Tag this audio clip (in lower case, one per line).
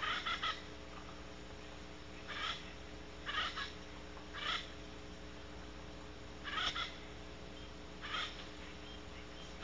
owl